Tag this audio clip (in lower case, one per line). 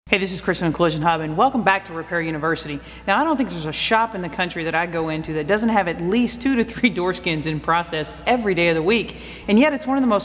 speech